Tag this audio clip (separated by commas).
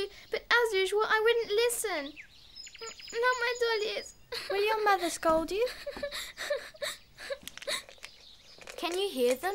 Speech, Child speech